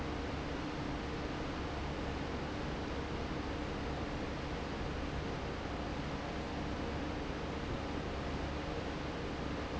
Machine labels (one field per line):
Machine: fan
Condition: normal